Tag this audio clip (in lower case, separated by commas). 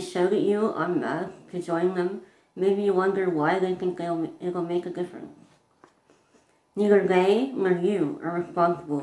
inside a small room, speech